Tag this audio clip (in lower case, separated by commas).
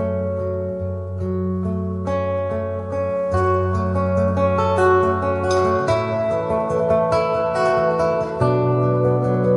music